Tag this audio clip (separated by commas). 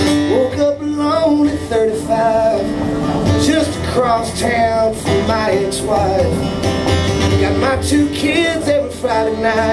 Music